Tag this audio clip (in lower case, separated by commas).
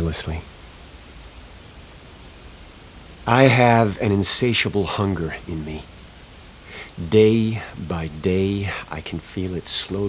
speech